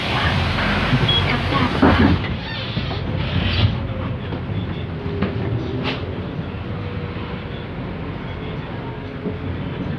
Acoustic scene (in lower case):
bus